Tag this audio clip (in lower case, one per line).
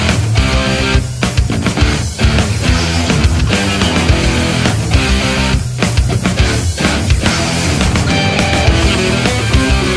music